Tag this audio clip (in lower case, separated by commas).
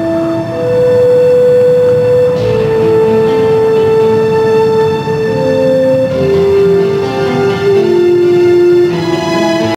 music